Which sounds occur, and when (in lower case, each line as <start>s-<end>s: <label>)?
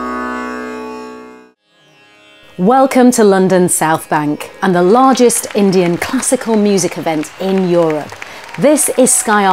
0.0s-9.5s: music
2.5s-4.5s: woman speaking
4.6s-7.2s: woman speaking
4.9s-9.5s: applause
7.4s-8.1s: woman speaking
8.4s-9.5s: cheering
8.6s-9.5s: woman speaking